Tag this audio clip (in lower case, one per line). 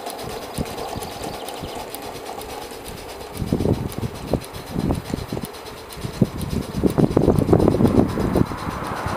train wagon
train
rail transport
clickety-clack